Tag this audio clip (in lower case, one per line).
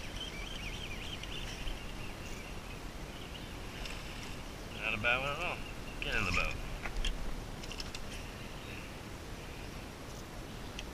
speech